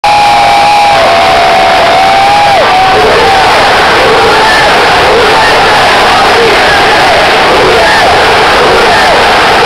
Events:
[0.02, 9.65] noise
[0.02, 9.65] crowd

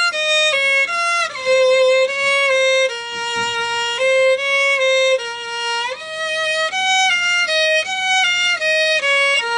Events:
[0.00, 9.55] music
[2.10, 2.30] generic impact sounds
[3.02, 3.54] generic impact sounds

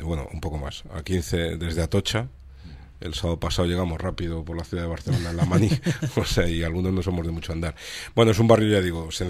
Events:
[0.00, 2.29] man speaking
[0.00, 9.25] background noise
[0.43, 0.46] tick
[1.05, 1.11] tick
[2.38, 2.44] tick
[2.45, 2.95] breathing
[3.04, 7.75] man speaking
[4.15, 4.21] tick
[4.43, 4.49] tick
[5.12, 6.28] laughter
[7.76, 8.12] breathing
[8.13, 9.25] man speaking

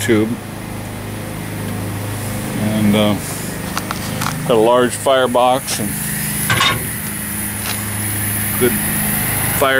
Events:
[0.00, 0.31] male speech
[0.00, 9.75] engine
[0.78, 0.88] tick
[1.60, 1.75] generic impact sounds
[2.13, 9.75] steam
[2.56, 3.17] male speech
[3.70, 3.89] walk
[4.16, 4.29] walk
[4.42, 5.89] male speech
[6.44, 6.80] generic impact sounds
[6.93, 9.75] fire
[7.01, 7.09] generic impact sounds
[7.58, 7.71] generic impact sounds
[8.54, 8.73] male speech
[9.54, 9.75] male speech

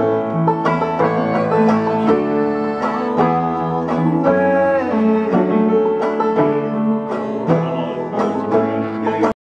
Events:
[0.00, 9.31] music
[2.76, 5.41] male singing
[7.48, 8.00] man speaking

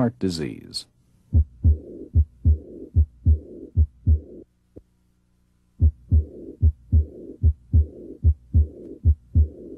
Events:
[0.00, 0.87] man speaking
[0.00, 9.75] mechanisms
[1.28, 1.72] heart sounds
[1.69, 2.03] breathing
[2.07, 2.54] heart sounds
[2.48, 2.83] breathing
[2.91, 3.36] heart sounds
[3.31, 3.67] breathing
[3.72, 4.18] heart sounds
[4.12, 4.41] breathing
[4.67, 4.79] generic impact sounds
[5.73, 6.21] heart sounds
[6.13, 6.53] breathing
[6.55, 7.00] heart sounds
[6.96, 7.32] breathing
[7.37, 7.83] heart sounds
[7.74, 8.16] breathing
[8.16, 8.64] heart sounds
[8.57, 8.95] breathing
[8.78, 8.87] generic impact sounds
[8.97, 9.48] heart sounds
[9.34, 9.75] breathing

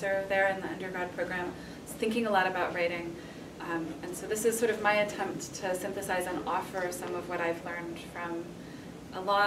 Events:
[0.00, 1.49] woman speaking
[0.00, 9.45] background noise
[1.45, 1.86] breathing
[1.80, 3.14] woman speaking
[3.08, 3.56] breathing
[3.57, 8.38] woman speaking
[8.52, 9.00] breathing

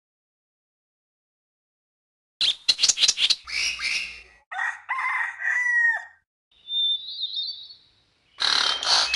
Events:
[2.37, 2.51] bird vocalization
[2.39, 6.20] wind
[2.64, 3.31] bird vocalization
[3.43, 4.29] bird vocalization
[4.49, 6.24] crowing
[6.49, 8.38] bird vocalization
[6.49, 9.15] wind
[8.36, 9.01] generic impact sounds
[8.57, 9.15] bird vocalization

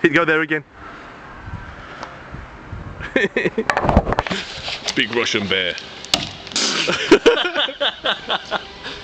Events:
[0.00, 0.63] male speech
[0.00, 9.03] wind
[1.29, 1.82] wind noise (microphone)
[1.60, 2.37] breathing
[1.96, 2.13] tick
[2.27, 3.06] wind noise (microphone)
[3.09, 3.63] laughter
[3.63, 4.31] generic impact sounds
[4.17, 4.91] surface contact
[4.81, 5.02] generic impact sounds
[4.86, 5.69] male speech
[5.70, 5.80] tick
[5.74, 5.78] generic impact sounds
[5.82, 9.03] music
[6.11, 6.29] chop
[6.42, 6.51] generic impact sounds
[6.51, 8.55] laughter
[8.72, 9.03] breathing

